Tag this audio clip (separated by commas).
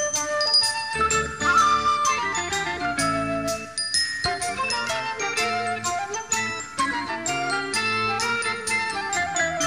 Music, Flute